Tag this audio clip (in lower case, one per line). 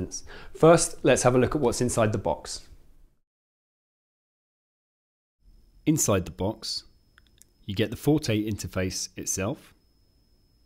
speech